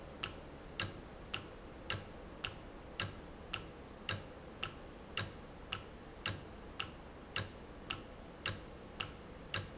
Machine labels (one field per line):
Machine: valve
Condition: normal